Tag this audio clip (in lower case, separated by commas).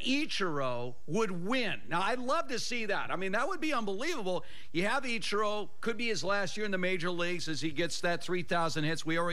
speech